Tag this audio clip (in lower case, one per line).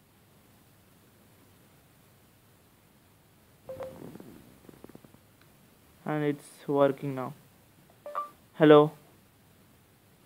inside a small room
speech